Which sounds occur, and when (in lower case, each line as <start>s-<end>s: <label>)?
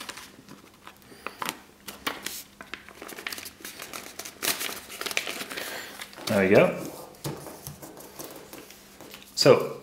0.0s-0.2s: paper rustling
0.0s-9.8s: mechanisms
0.4s-0.9s: paper rustling
1.0s-1.4s: breathing
1.2s-1.3s: tick
1.4s-1.5s: paper rustling
1.8s-2.3s: paper rustling
2.2s-2.4s: surface contact
2.6s-2.8s: tick
2.6s-3.5s: paper rustling
3.6s-4.2s: paper rustling
4.4s-4.7s: paper rustling
4.9s-5.4s: paper rustling
5.5s-5.8s: paper rustling
5.5s-6.0s: breathing
5.9s-6.2s: paper rustling
6.2s-6.3s: tick
6.3s-6.8s: man speaking
6.5s-6.6s: tick
6.8s-7.1s: surface contact
7.2s-7.5s: paper rustling
7.2s-7.8s: surface contact
7.6s-8.0s: paper rustling
8.0s-9.3s: surface contact
8.2s-8.7s: paper rustling
8.9s-9.2s: paper rustling
9.4s-9.8s: man speaking